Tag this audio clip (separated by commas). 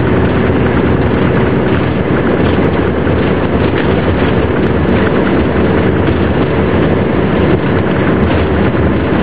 Bus, Vehicle